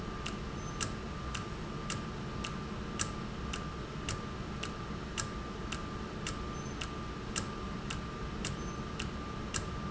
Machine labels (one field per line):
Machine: valve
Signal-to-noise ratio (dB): -6 dB